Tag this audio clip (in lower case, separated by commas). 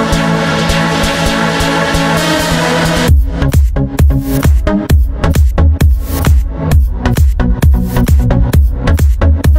music